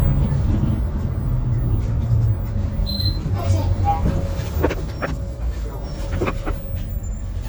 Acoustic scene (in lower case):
bus